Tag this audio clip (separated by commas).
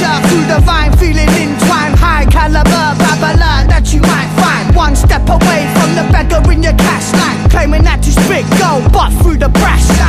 Music